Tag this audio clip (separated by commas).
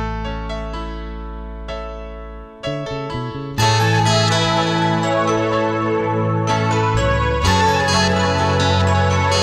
Music, Soundtrack music